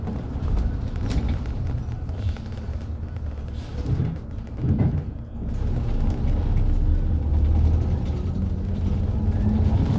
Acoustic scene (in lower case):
bus